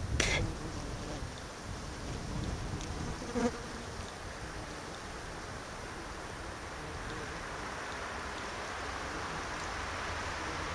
Outside natural noises of insects buzzing around